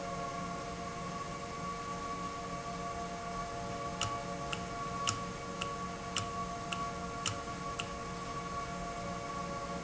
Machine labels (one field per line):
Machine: valve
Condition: normal